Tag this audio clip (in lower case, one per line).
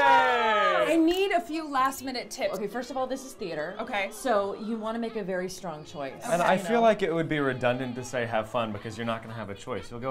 speech
music